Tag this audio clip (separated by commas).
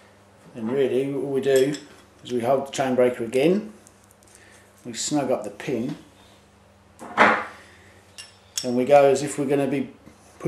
Tools, Speech